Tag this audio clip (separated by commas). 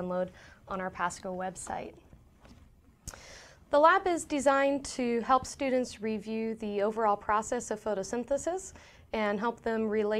Speech